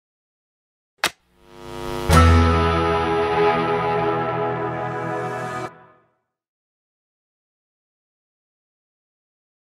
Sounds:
music, speech

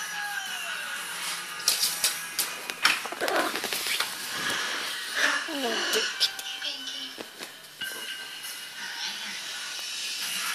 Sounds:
animal, music, speech, pets, cat

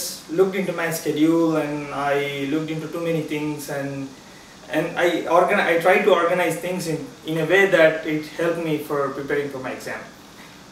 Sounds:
inside a small room, speech

